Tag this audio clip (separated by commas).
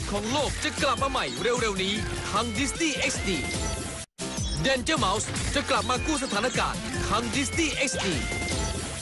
Speech, Music